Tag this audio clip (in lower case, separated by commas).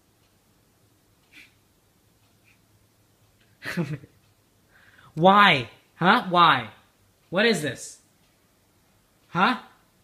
speech